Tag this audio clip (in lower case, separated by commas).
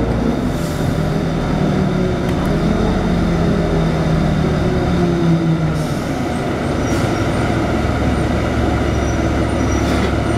bus, outside, urban or man-made, vehicle